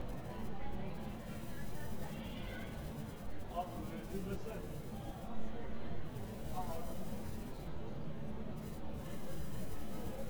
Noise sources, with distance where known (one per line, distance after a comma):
person or small group talking, near
person or small group shouting